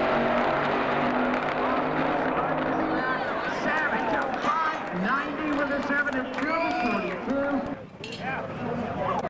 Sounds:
speech
vehicle
motor vehicle (road)

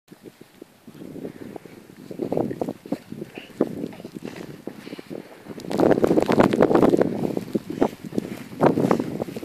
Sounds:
outside, rural or natural

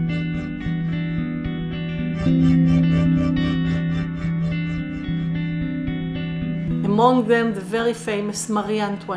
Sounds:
speech
music

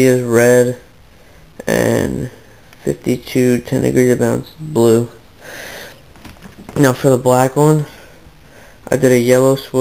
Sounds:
speech

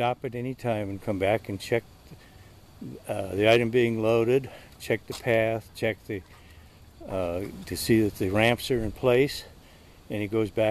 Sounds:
speech

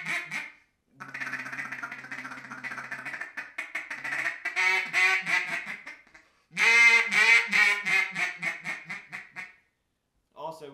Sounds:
quack

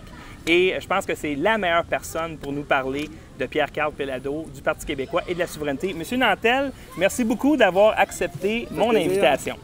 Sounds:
speech

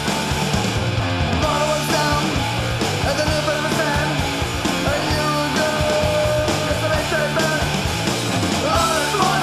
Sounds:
punk rock
music

